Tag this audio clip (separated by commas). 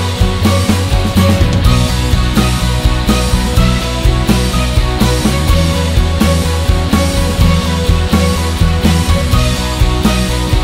Background music